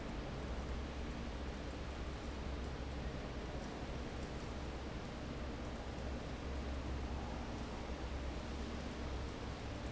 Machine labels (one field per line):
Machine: fan